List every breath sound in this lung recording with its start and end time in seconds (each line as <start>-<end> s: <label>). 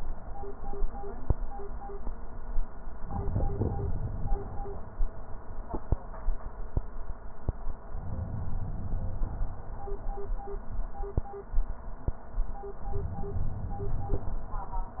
7.97-9.47 s: inhalation
12.84-14.34 s: inhalation